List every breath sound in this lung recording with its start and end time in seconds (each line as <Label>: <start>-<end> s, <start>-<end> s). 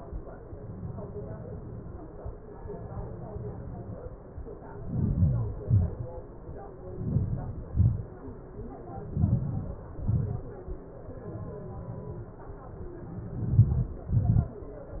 Inhalation: 4.55-5.58 s, 6.68-7.67 s, 8.77-9.79 s, 12.85-14.22 s
Exhalation: 5.64-6.26 s, 7.72-8.33 s, 9.85-10.53 s, 14.31-15.00 s